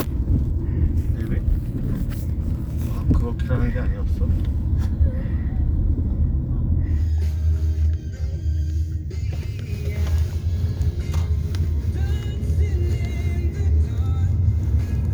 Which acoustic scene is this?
car